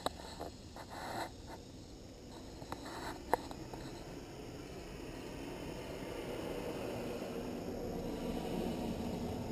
Rustling and white noise